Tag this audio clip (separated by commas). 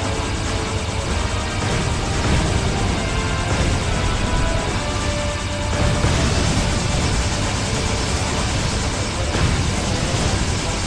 Music